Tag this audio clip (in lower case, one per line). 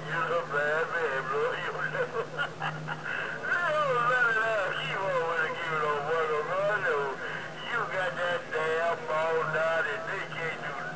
radio
speech